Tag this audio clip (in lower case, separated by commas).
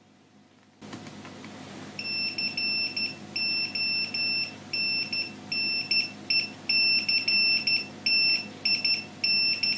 buzzer